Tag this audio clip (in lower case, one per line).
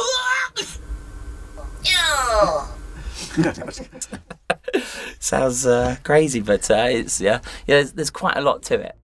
speech